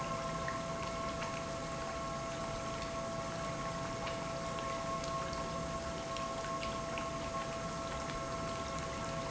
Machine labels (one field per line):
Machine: pump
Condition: normal